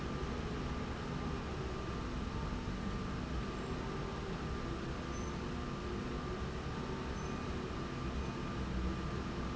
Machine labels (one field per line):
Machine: slide rail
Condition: normal